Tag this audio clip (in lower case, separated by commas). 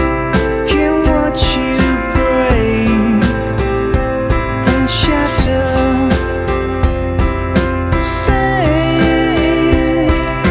music